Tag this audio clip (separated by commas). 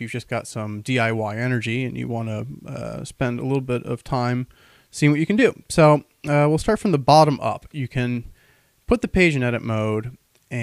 Speech